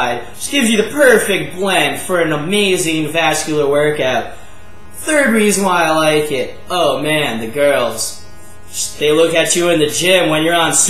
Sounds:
speech

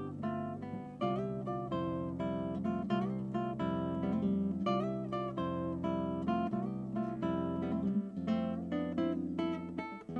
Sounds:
music
plucked string instrument
guitar
musical instrument
acoustic guitar

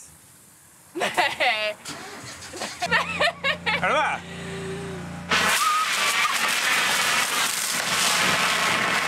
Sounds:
speech

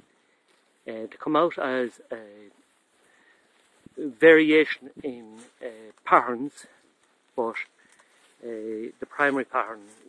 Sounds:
speech

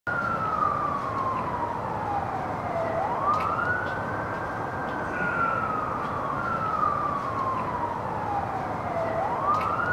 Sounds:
emergency vehicle
police car (siren)
siren

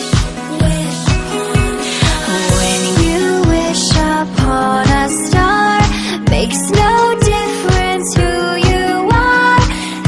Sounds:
music
tender music

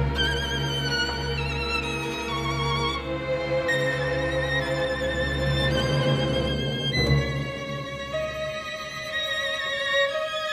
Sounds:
music
musical instrument
fiddle

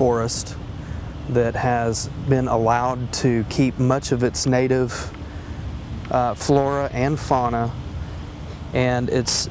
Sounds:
speech

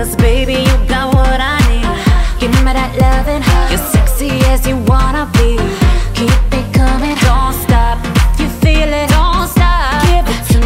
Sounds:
music

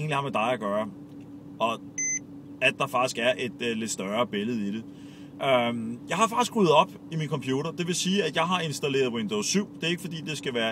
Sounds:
speech

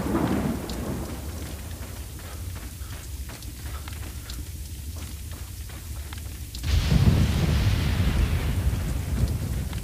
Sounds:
run

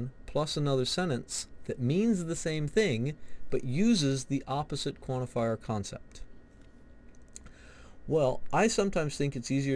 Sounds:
monologue

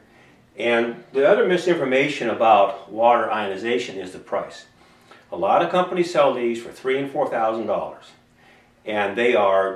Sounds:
speech

